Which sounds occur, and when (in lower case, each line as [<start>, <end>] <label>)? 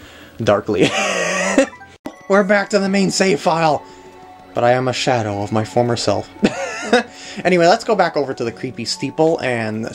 [0.00, 0.32] breathing
[0.00, 1.92] video game sound
[0.35, 0.90] man speaking
[0.79, 1.66] chortle
[1.66, 1.94] music
[2.02, 9.94] video game sound
[2.04, 9.94] music
[2.11, 2.26] tap
[2.26, 3.81] man speaking
[3.77, 4.06] breathing
[3.93, 4.42] tap
[4.52, 6.24] man speaking
[6.39, 6.99] chortle
[7.06, 7.38] breathing
[7.37, 9.94] man speaking